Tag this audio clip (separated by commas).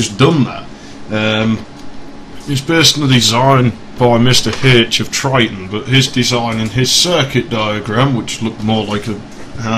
Speech